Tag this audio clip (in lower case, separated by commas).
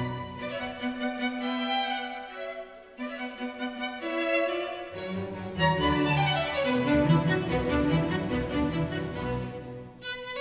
music, musical instrument, fiddle